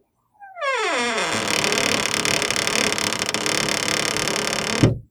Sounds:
domestic sounds, squeak, door, wood

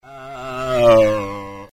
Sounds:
auto racing, vehicle, motor vehicle (road), car

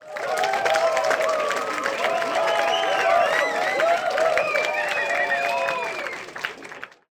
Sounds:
crowd, cheering, applause, human group actions

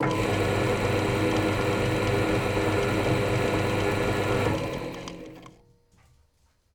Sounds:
drill, power tool, tools, mechanisms

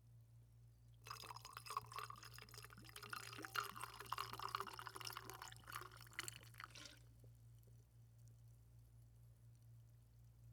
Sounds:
liquid

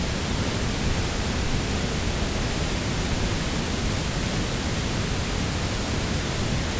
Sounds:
water

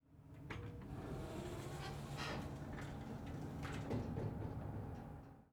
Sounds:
door, home sounds, sliding door

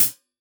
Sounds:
percussion, hi-hat, music, cymbal, musical instrument

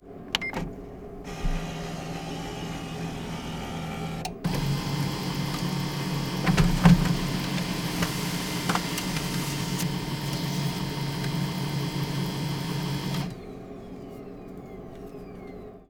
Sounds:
mechanisms, printer

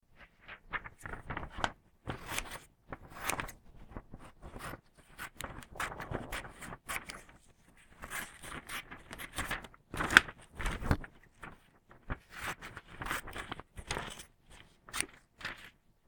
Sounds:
scissors, home sounds

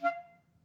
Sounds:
woodwind instrument, musical instrument, music

